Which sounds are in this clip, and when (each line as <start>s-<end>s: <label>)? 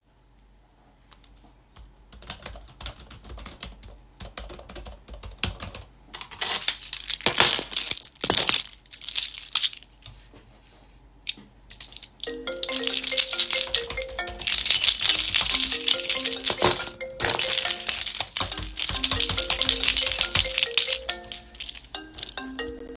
1.0s-6.0s: keyboard typing
6.1s-10.1s: keys
11.2s-22.6s: keys
12.2s-22.9s: phone ringing